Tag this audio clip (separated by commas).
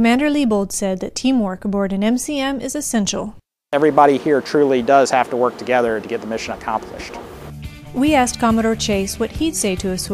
Speech, Music